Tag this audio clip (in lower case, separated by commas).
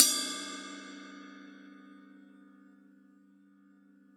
music, percussion, crash cymbal, musical instrument, cymbal